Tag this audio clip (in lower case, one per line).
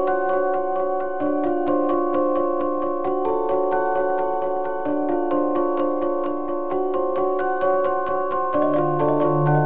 music